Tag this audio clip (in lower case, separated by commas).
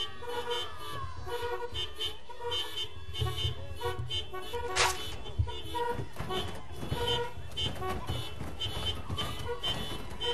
car horn